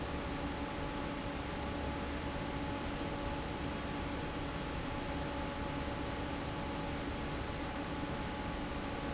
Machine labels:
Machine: fan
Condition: normal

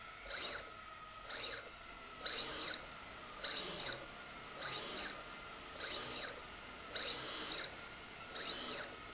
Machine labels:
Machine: slide rail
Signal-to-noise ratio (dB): 6 dB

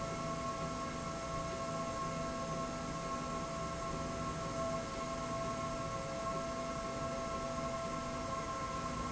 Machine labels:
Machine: slide rail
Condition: normal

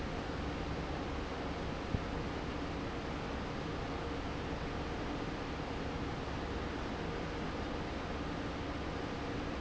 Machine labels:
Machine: fan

